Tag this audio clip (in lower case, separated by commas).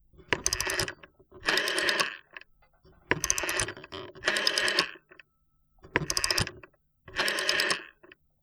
alarm, telephone